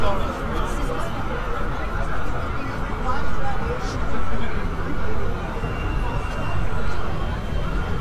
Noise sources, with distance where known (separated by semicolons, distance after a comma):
person or small group talking